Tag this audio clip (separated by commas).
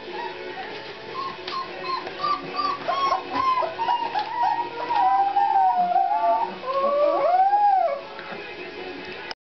Music